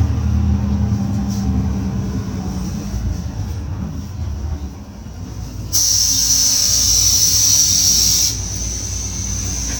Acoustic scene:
bus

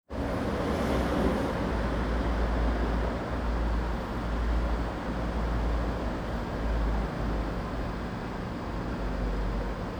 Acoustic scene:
residential area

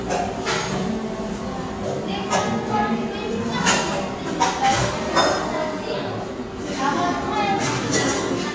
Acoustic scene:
cafe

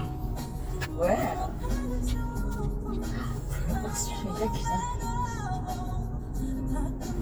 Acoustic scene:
car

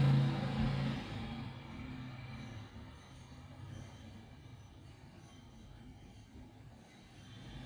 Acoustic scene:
street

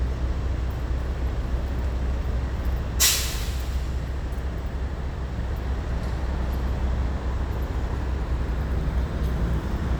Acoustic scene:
street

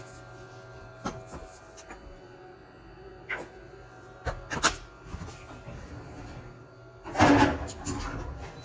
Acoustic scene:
kitchen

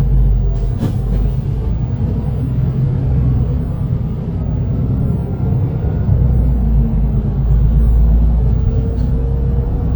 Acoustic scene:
bus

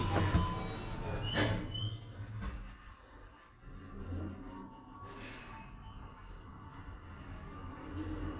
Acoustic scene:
elevator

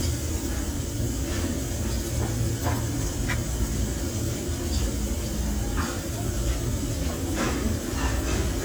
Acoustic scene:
restaurant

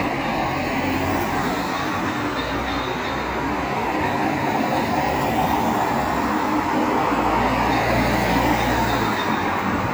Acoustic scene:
street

